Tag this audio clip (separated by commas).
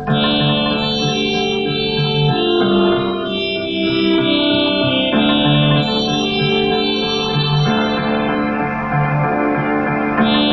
outside, urban or man-made, Music